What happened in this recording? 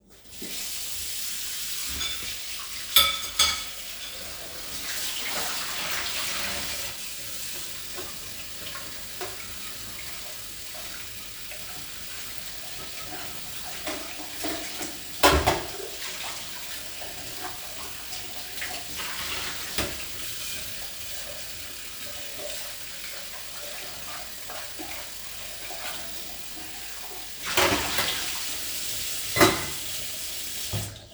I was washing my dishes in a sink. After washing each dish I was putting it near sink to dry.